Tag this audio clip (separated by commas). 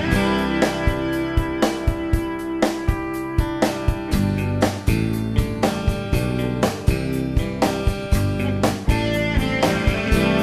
Soundtrack music, Music